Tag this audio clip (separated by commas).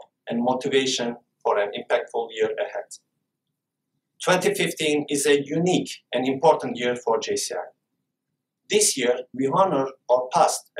man speaking, Speech, Narration